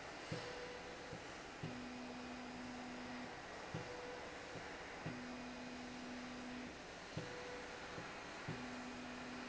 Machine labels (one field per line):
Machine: slide rail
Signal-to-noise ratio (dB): 6 dB